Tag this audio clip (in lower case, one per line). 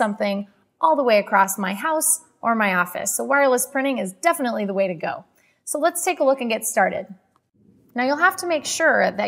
speech